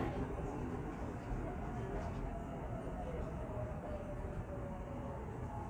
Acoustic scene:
subway train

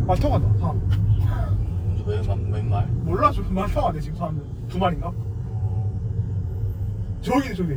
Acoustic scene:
car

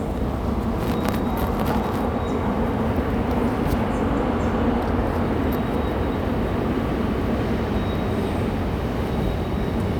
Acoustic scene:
subway station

